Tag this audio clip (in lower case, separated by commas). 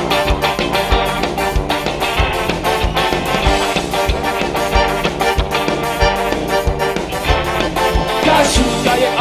sound effect, music